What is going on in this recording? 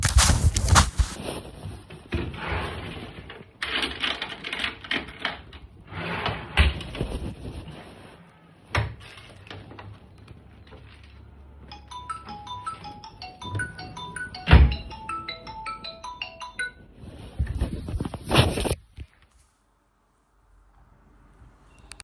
I looked through my drawer. The phone rang.